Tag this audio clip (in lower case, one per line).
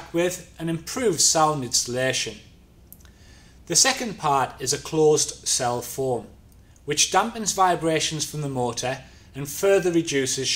speech